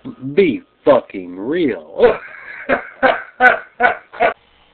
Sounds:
Speech, Human voice, man speaking

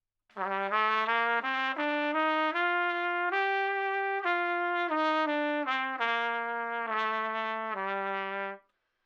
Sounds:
Trumpet, Musical instrument, Music, Brass instrument

